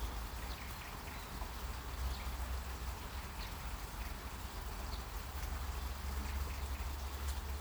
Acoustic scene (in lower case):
park